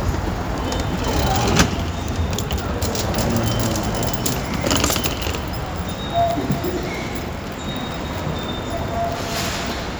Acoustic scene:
subway station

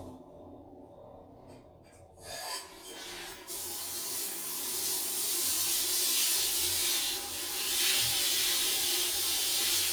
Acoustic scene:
restroom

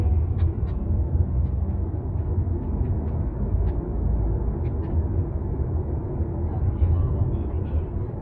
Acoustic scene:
car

